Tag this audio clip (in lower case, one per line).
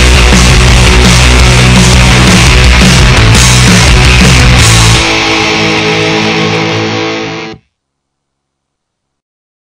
music